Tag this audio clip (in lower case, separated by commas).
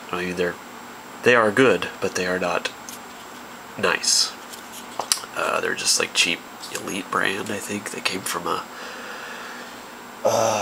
speech, inside a small room